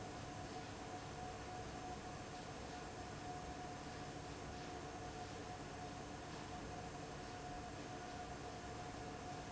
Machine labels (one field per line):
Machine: fan